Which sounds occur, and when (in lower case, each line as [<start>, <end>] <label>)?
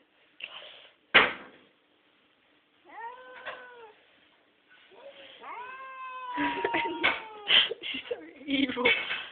[0.00, 9.31] background noise
[0.35, 0.98] breathing
[2.88, 3.84] cat
[4.85, 7.47] cat
[6.34, 9.31] giggle
[8.41, 9.09] woman speaking